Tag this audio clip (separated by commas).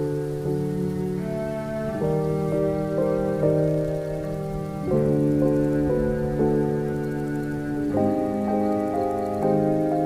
Music, outside, rural or natural